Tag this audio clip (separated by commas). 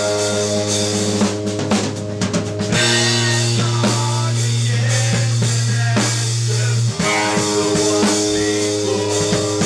Music